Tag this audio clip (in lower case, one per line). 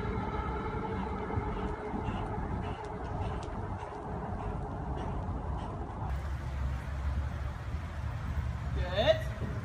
clip-clop
speech